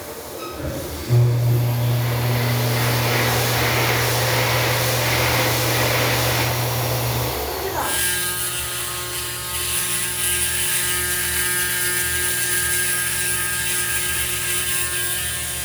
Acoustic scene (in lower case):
restroom